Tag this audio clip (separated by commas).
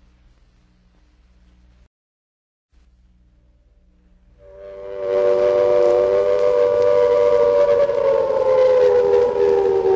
Train whistle